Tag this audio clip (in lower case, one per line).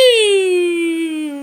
human voice
singing